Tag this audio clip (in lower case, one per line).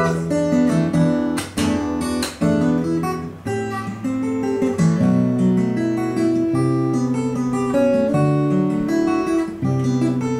music